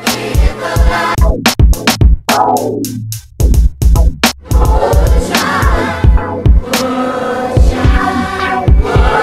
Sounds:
Music, Gospel music

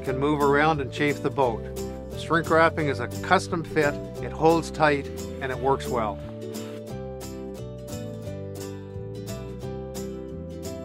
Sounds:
Music, Speech

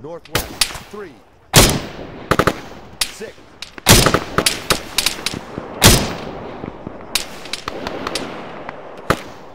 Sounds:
Speech

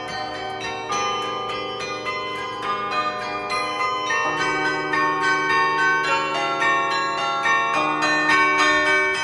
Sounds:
wind chime

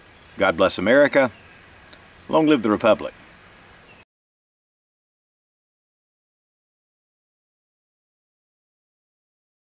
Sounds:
outside, rural or natural, Speech

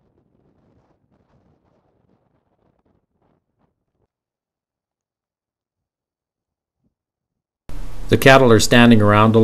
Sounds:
Speech

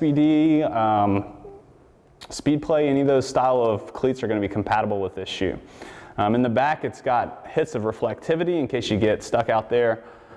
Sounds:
Speech

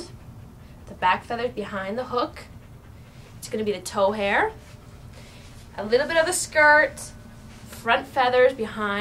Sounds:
Speech

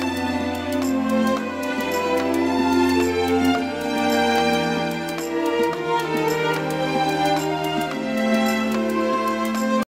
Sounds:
Music

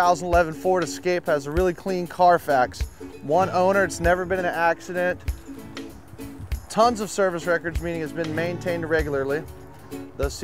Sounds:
Music, Speech

